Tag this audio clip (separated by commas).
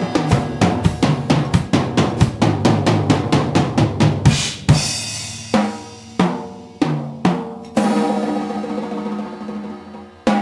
Percussion, Drum kit, Hi-hat, Cymbal, Bass drum, Musical instrument, Drum, Music